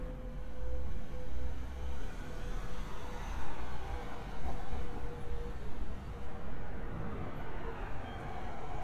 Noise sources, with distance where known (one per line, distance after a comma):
medium-sounding engine